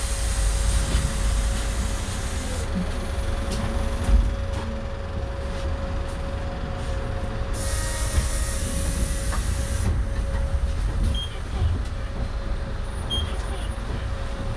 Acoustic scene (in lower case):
bus